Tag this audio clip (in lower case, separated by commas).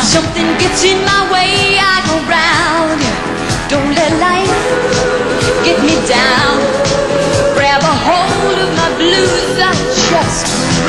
music, pop music